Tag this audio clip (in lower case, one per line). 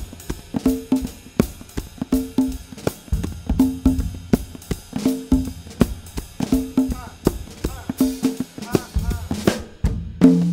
playing congas